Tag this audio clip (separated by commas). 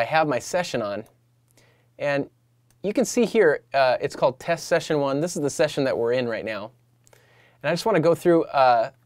Speech